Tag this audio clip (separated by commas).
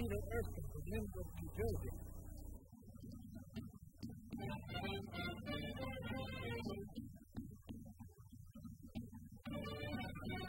Drum, Drum kit, Bass drum, Percussion